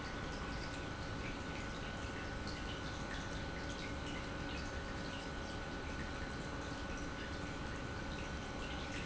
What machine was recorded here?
pump